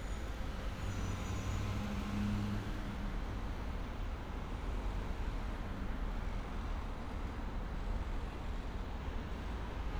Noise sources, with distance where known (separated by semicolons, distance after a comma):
medium-sounding engine